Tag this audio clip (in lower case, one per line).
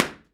tap
gunshot
hands
clapping
explosion